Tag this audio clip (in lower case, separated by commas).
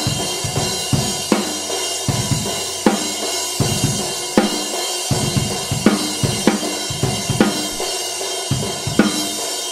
playing bass drum, bass drum, music